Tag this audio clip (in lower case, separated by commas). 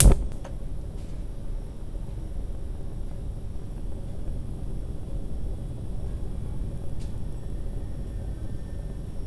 fire